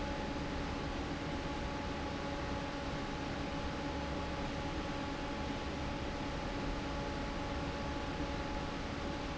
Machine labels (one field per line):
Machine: fan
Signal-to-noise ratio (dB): -6 dB